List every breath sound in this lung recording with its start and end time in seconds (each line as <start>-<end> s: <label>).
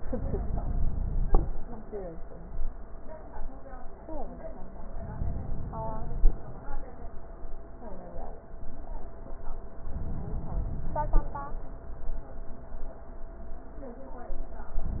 4.95-6.37 s: inhalation
9.83-11.25 s: inhalation